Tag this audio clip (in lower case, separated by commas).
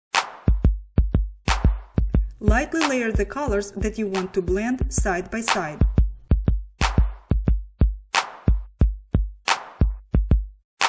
speech, music